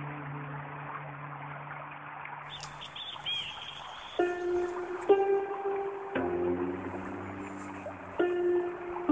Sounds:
Environmental noise

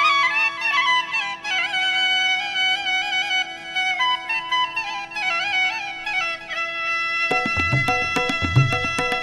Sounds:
Music

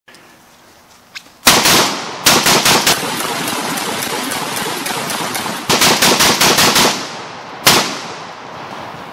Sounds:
Gunshot

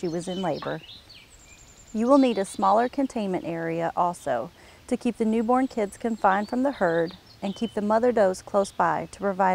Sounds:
Speech

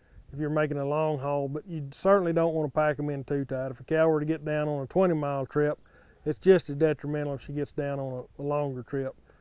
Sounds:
Speech

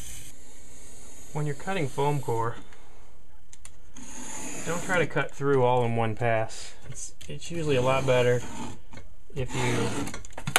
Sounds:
Speech

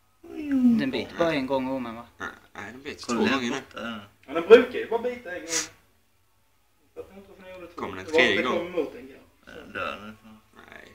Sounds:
Speech

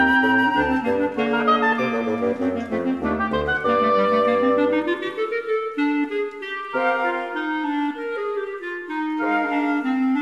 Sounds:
Flute, Wind instrument, Clarinet, Music

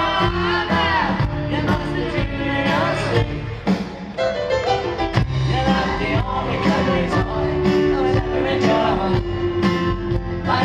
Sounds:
Singing

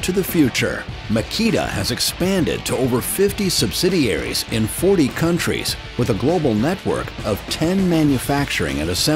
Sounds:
Music, Speech

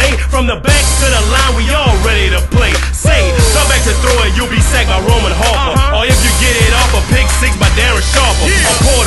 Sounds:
Music

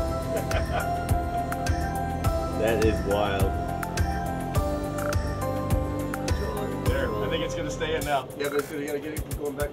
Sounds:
Music, Speech

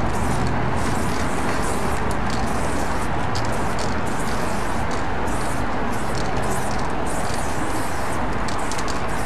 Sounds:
Spray

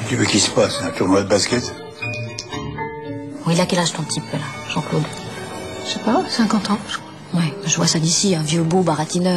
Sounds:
Speech, Music

